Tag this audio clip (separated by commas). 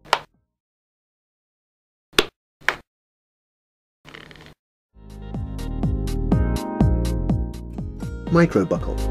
Speech, Music